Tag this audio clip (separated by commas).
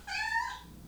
Animal, Cat, Meow, pets